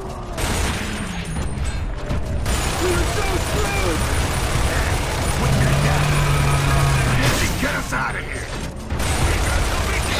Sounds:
speech

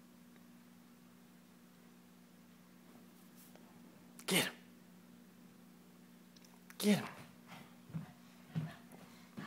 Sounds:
speech

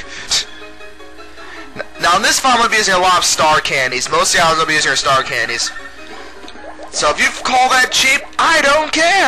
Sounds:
speech, music

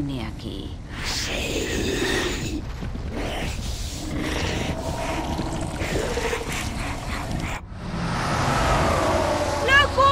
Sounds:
speech, car, vehicle

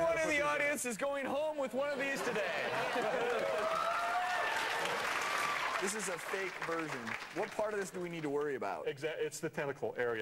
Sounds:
speech

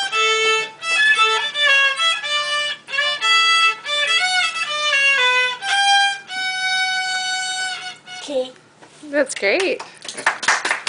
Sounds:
musical instrument, fiddle, music

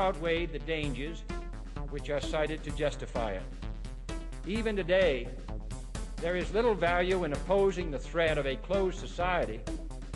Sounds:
speech, monologue, man speaking, music

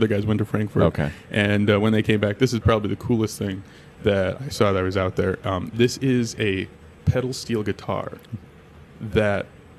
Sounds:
speech

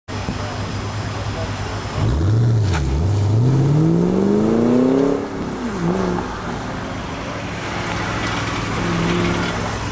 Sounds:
car, auto racing, vehicle

